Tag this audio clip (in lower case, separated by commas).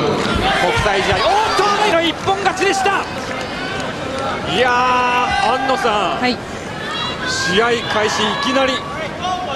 speech